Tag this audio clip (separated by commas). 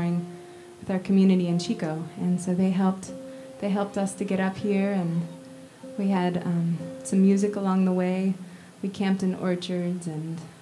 Speech, Music